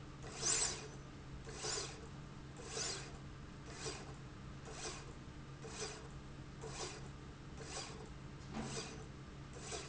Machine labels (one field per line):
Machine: slide rail